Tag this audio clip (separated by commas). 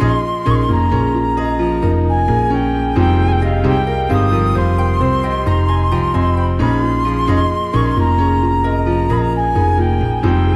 Music